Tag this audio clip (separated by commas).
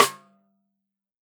Snare drum, Musical instrument, Drum, Percussion, Music